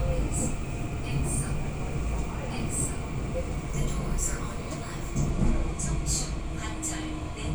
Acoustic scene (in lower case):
subway train